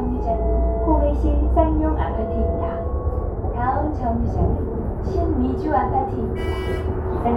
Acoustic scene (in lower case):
bus